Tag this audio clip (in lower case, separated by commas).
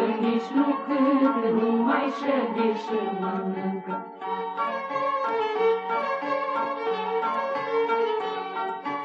folk music, clarinet, music